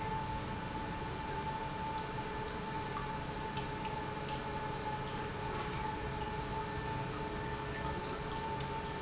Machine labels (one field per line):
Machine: pump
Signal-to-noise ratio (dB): -6 dB